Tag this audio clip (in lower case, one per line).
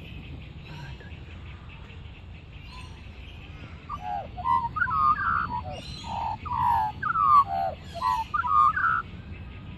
magpie calling